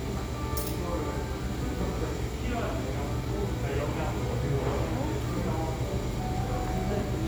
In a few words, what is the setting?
cafe